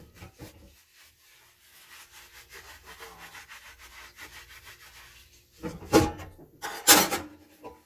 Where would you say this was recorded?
in a kitchen